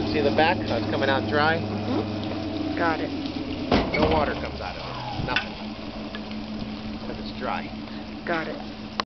Man and woman talking outside with a quick bang at the end